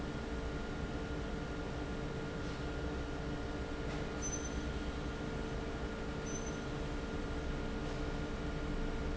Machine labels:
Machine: fan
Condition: normal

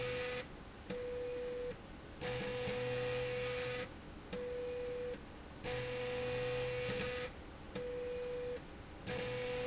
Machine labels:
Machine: slide rail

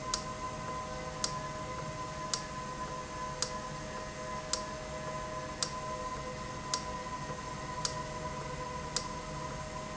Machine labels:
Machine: valve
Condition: normal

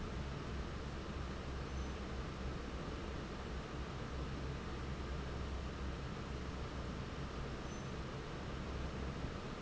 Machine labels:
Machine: fan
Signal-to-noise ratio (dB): 0 dB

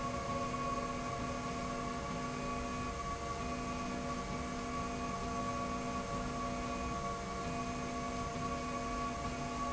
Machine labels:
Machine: slide rail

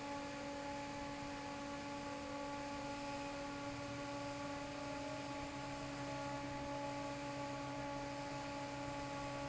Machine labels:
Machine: fan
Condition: normal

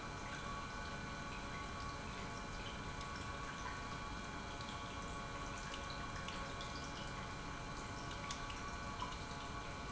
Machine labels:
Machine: pump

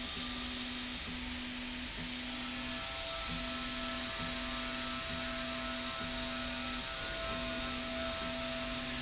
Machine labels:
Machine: slide rail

